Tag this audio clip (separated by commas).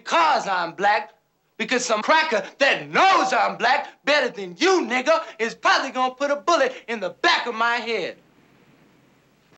Speech